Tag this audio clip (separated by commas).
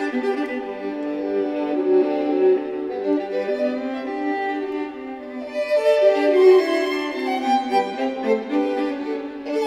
Violin, Music, Musical instrument